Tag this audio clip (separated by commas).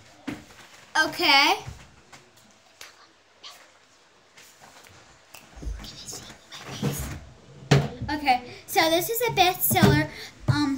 Speech